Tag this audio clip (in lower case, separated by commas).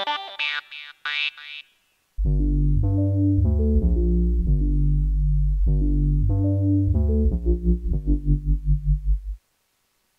synthesizer, music, electronic music, dubstep